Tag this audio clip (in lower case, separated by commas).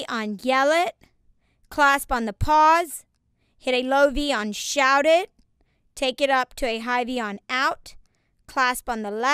speech